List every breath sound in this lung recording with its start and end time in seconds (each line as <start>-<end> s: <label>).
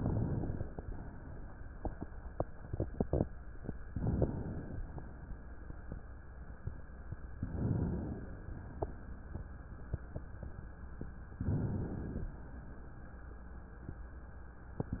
3.86-4.83 s: inhalation
7.39-8.36 s: inhalation
11.37-12.35 s: inhalation